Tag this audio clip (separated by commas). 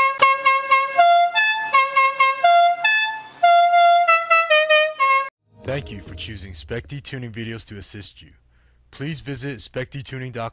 Speech, Music